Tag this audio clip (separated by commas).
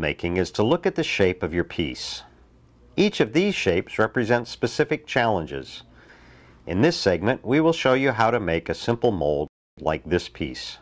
Speech